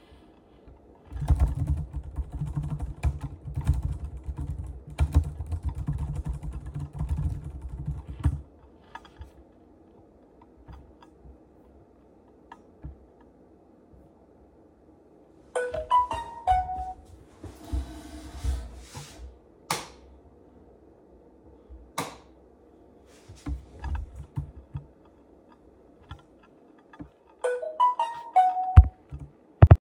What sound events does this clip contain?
keyboard typing, phone ringing, light switch